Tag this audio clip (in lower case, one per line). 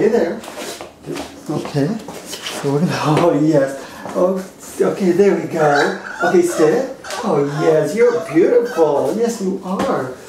speech